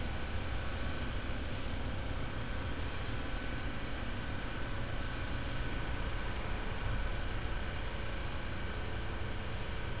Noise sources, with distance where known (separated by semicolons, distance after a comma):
engine of unclear size